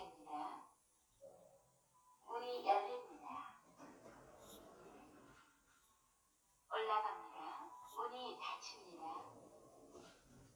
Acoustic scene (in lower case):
elevator